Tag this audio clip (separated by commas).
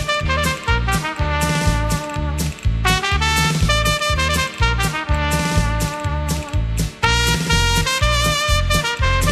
playing cornet